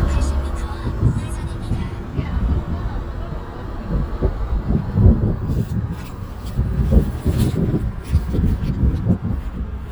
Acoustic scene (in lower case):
car